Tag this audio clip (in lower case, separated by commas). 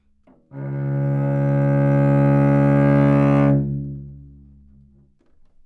music, musical instrument, bowed string instrument